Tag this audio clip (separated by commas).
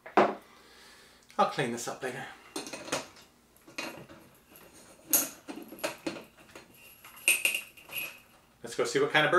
Speech, inside a small room